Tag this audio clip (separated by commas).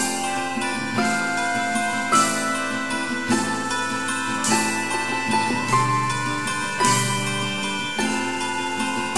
Jingle